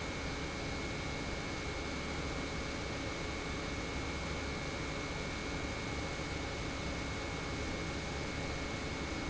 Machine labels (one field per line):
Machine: pump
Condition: normal